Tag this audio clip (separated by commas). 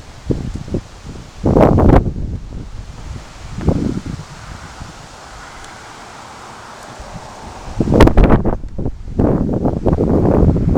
Wind noise (microphone)